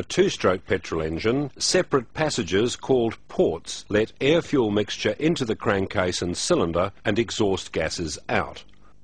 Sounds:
speech

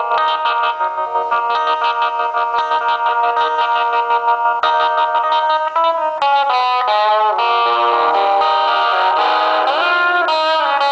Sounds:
music

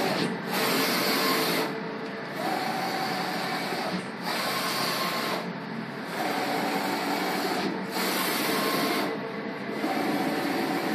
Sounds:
printer, printer printing

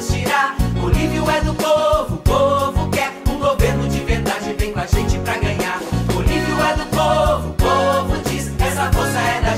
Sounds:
music, jingle (music)

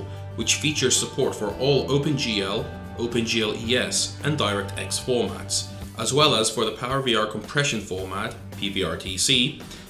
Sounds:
speech, music

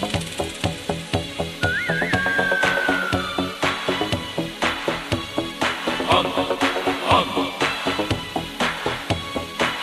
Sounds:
music

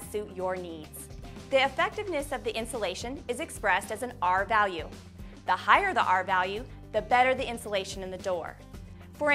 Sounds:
music, speech

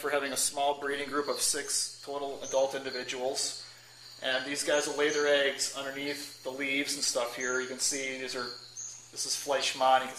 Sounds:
speech

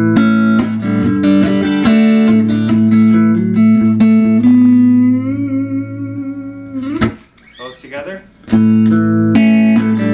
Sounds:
musical instrument, speech, plucked string instrument, electric guitar, guitar, music, strum

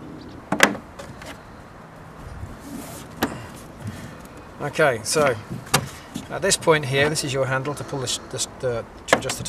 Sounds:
speech

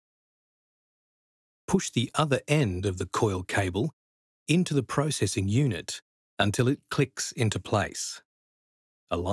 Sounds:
speech

